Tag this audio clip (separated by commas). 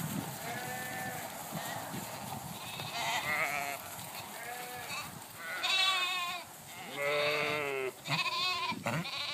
sheep bleating, Sheep, Bleat